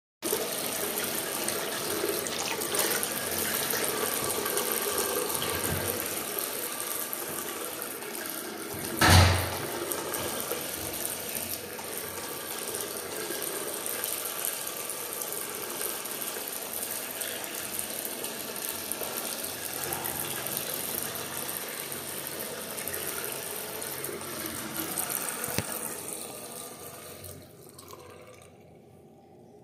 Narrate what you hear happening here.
In public toilet washing hands someone comes in through the door and the toilet flushes